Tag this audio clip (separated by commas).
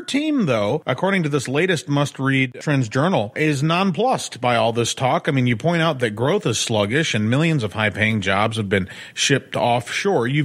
Speech